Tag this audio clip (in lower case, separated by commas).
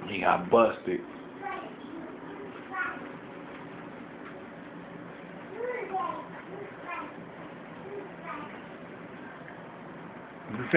domestic animals, dog, speech, animal